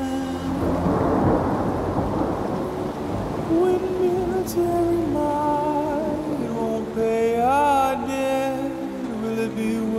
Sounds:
thunderstorm
music

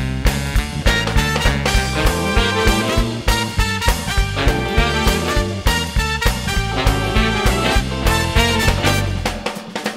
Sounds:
music

